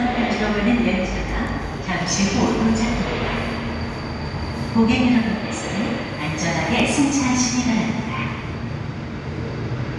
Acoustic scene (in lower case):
subway station